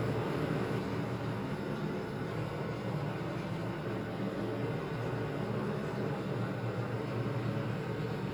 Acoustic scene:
elevator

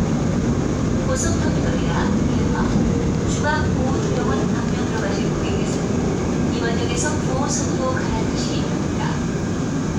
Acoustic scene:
subway train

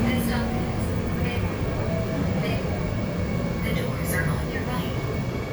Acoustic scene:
subway train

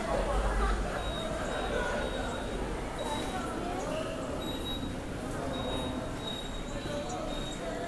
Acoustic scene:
subway station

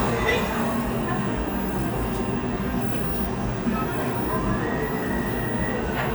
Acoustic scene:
cafe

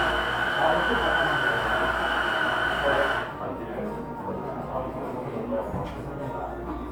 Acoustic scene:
cafe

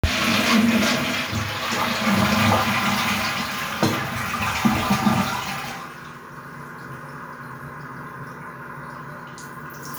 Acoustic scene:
restroom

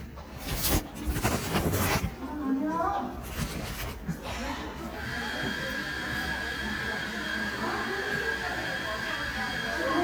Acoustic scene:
crowded indoor space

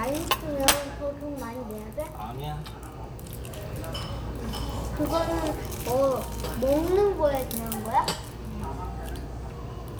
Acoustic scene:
restaurant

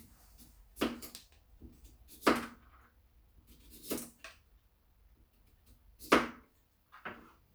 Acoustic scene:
kitchen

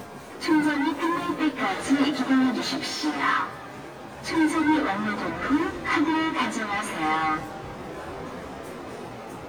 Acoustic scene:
subway station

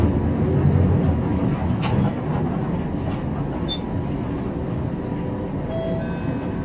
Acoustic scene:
bus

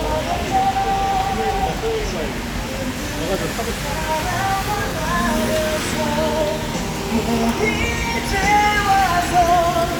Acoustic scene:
street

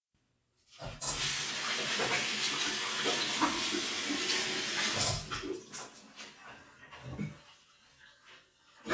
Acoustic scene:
restroom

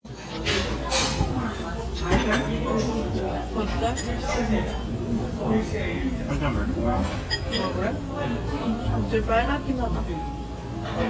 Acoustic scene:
restaurant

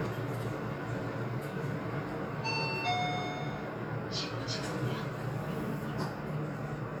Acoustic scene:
elevator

